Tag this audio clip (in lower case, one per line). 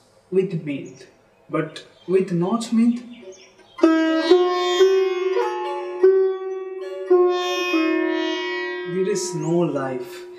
playing sitar